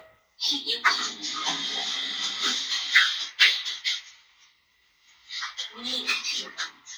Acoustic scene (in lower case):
elevator